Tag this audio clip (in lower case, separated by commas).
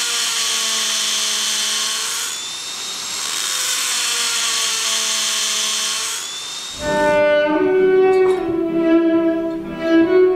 music, fiddle, bowed string instrument